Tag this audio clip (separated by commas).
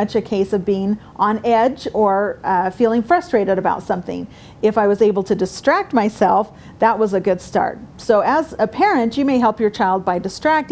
Speech